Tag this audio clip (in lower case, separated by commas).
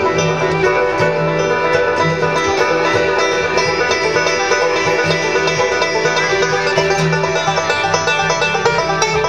music